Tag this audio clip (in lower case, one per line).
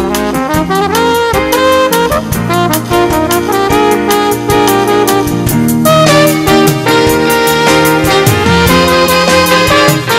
jazz
musical instrument
music
wind instrument